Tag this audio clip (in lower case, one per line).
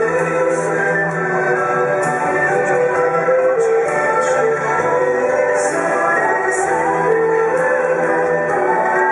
playing erhu